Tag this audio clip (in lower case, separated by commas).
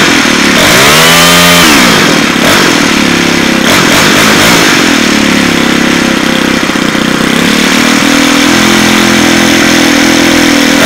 vehicle, revving, car